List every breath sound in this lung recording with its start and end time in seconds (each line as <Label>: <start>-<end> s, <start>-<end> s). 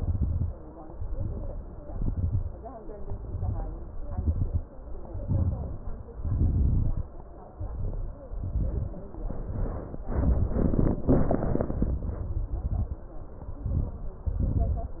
Inhalation: 0.87-1.78 s, 2.87-4.03 s, 5.23-6.15 s, 7.56-8.30 s, 9.29-10.05 s, 13.66-14.29 s
Exhalation: 0.00-0.49 s, 1.84-2.62 s, 4.08-4.65 s, 6.20-7.12 s, 8.38-9.23 s, 10.07-12.39 s, 14.33-15.00 s
Crackles: 0.00-0.49 s, 0.87-1.78 s, 1.84-2.62 s, 2.87-4.03 s, 4.08-4.65 s, 5.23-6.15 s, 6.20-7.12 s, 7.56-8.30 s, 8.38-9.23 s, 9.29-10.05 s, 10.07-12.39 s, 13.66-14.29 s, 14.33-15.00 s